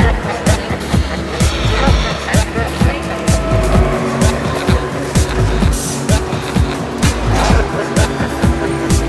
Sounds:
Speech, Music

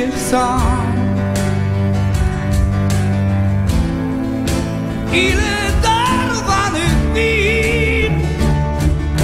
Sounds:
Double bass, Bowed string instrument, Cello

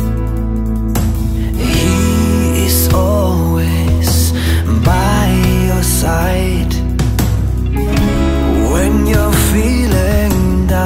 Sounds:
Music, Soundtrack music

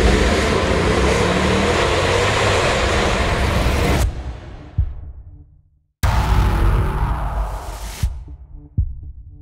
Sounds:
Music

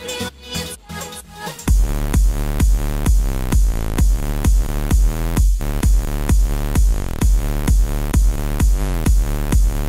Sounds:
Music

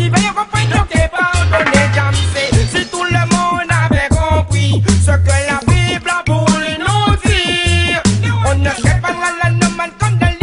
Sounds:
Reggae, Hip hop music, Music

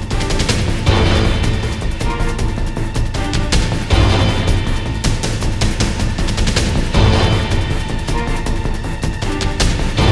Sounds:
Music

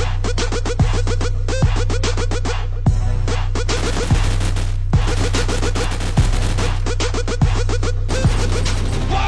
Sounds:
Speech, Music

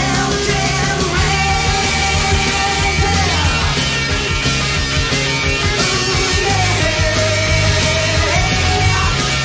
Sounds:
Heavy metal, inside a large room or hall, Music

